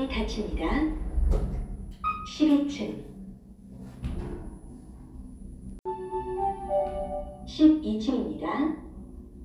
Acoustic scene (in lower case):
elevator